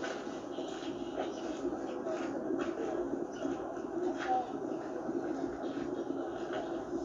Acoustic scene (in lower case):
park